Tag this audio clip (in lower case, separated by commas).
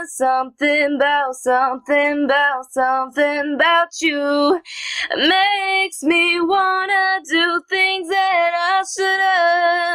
female singing